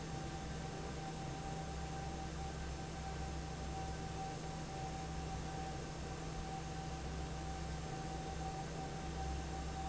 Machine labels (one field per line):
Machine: fan